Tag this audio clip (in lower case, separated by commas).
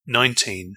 human voice, man speaking, speech